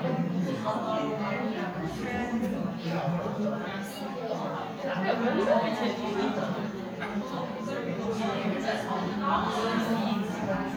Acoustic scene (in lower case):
crowded indoor space